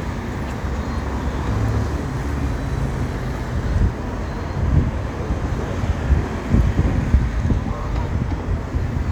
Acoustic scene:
street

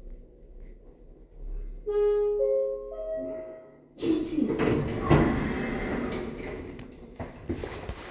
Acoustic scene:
elevator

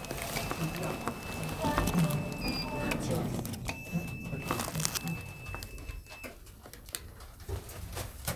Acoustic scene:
elevator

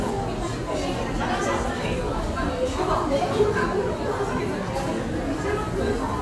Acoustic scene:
crowded indoor space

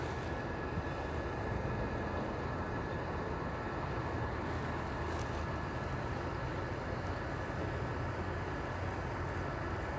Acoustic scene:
street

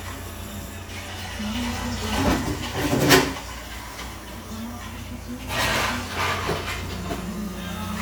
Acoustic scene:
cafe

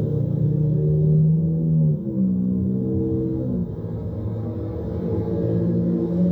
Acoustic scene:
car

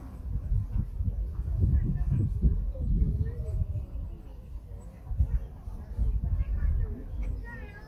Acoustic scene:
park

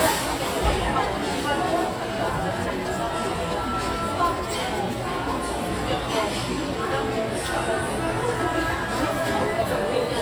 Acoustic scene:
crowded indoor space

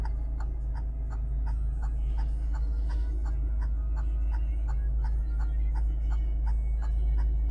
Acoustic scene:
car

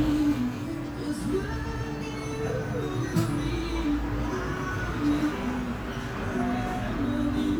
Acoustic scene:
cafe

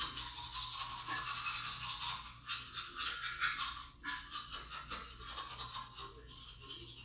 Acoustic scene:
restroom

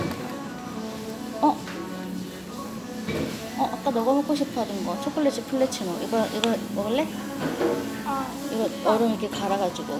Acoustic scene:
cafe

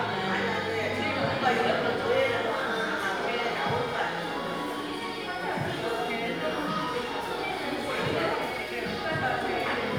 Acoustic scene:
crowded indoor space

